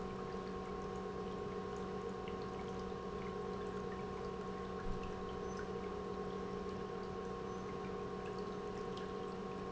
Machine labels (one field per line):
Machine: pump